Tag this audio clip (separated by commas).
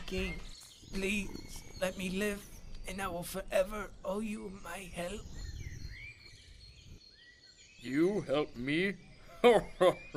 Speech